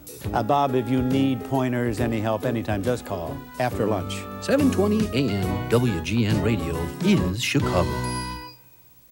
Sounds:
Speech, Radio, Music

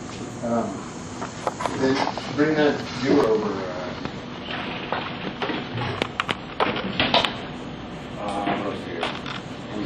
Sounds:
Speech, Spray

